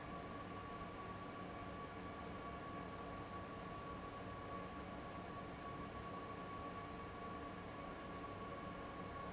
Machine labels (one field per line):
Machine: fan